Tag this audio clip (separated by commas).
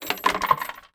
Coin (dropping), Wood, Domestic sounds